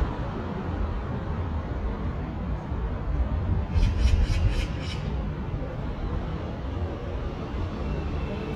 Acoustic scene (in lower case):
residential area